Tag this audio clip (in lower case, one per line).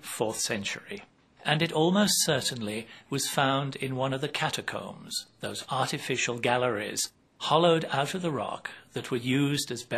speech